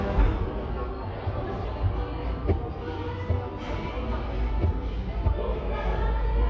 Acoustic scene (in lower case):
cafe